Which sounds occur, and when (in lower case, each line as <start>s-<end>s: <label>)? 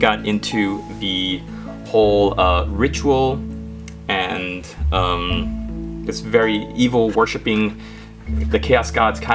0.0s-0.8s: male speech
0.0s-9.3s: music
0.9s-1.4s: male speech
1.8s-3.4s: male speech
3.9s-5.4s: male speech
6.0s-7.7s: male speech
8.3s-9.3s: male speech